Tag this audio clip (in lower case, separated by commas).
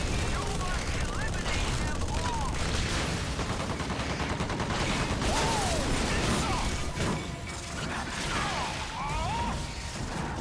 speech